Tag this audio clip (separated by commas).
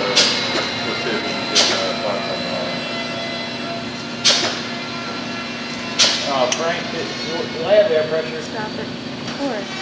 Speech, inside a large room or hall